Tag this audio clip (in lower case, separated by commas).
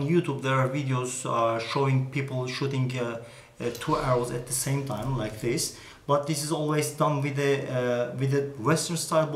speech